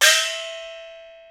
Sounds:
Music, Percussion, Gong, Musical instrument

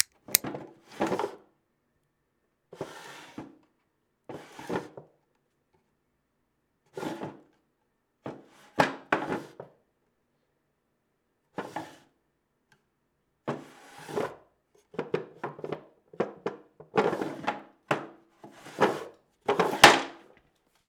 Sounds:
Drawer open or close, home sounds

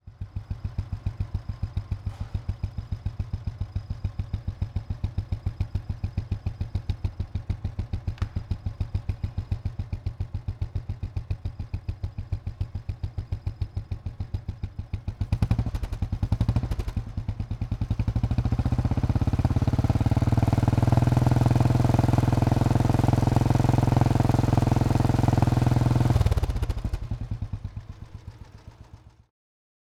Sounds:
Motorcycle, Vehicle, Idling, Motor vehicle (road), Engine

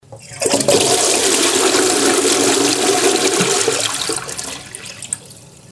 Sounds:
home sounds, Water, Toilet flush

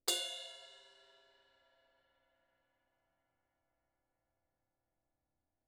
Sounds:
Crash cymbal, Percussion, Cymbal, Music, Musical instrument

